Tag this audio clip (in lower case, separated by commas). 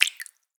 drip, liquid